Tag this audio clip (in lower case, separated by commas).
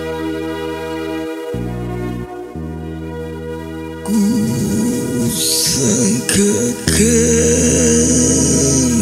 music